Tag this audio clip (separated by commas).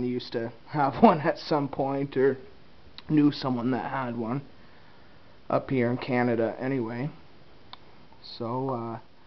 Speech